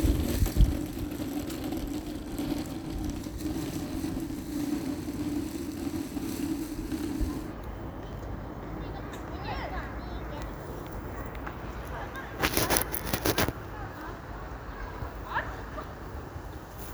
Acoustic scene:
residential area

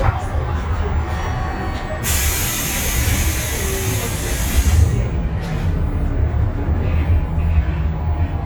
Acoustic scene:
bus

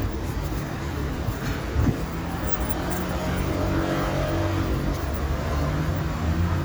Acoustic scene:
street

